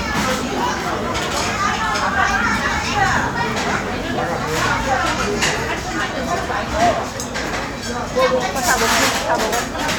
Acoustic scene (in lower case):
restaurant